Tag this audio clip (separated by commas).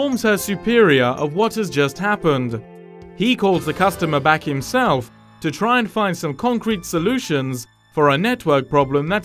Speech, Music